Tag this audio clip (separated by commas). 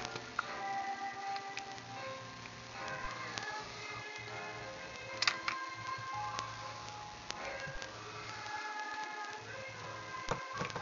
Music, inside a small room